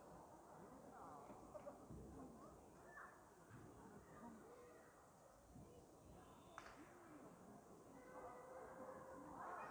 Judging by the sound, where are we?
in a park